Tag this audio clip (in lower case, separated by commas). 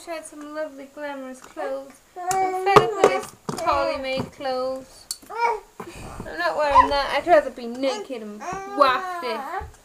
babbling, inside a small room, speech